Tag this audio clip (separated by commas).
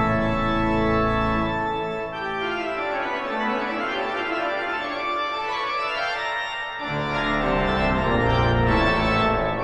playing electronic organ